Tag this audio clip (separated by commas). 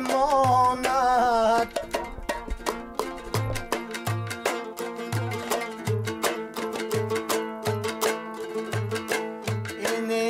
Music